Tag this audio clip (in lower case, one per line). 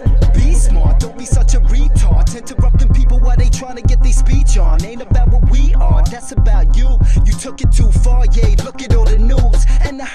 music